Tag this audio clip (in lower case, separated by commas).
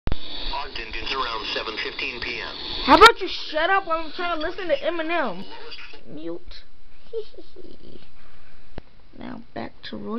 speech, inside a small room